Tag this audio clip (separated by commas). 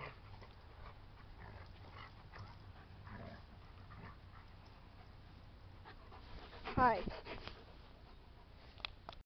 Dog, Speech, pets